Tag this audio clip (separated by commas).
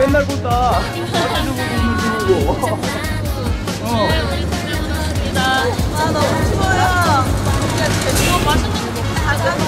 Speech, Music